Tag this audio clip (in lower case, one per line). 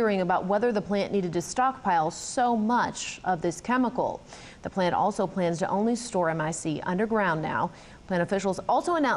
speech